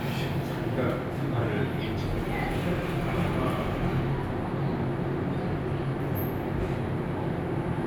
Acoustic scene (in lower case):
elevator